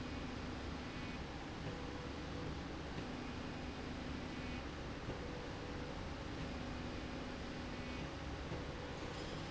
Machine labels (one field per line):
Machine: slide rail